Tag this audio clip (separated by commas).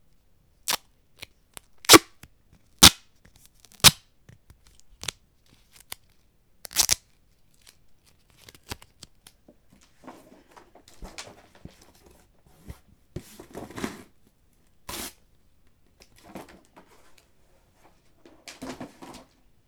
duct tape, home sounds